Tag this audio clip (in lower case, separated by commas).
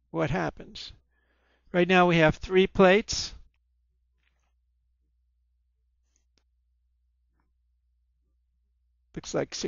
speech